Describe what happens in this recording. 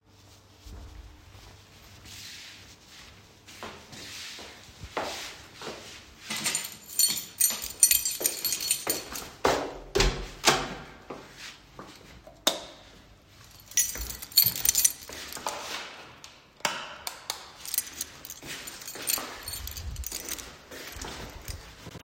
went to put my slippers, picked my keys, turned the lights off opened the door to get outside and turned the outside lights on